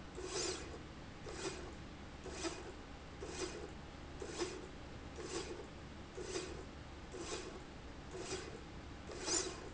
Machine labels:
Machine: slide rail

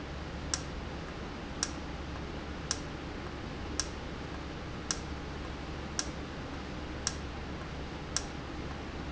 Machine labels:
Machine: valve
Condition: normal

